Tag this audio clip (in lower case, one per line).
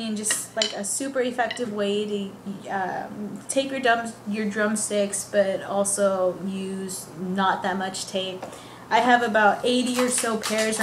speech